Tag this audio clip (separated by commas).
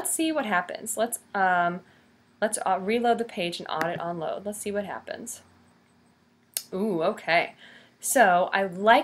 Speech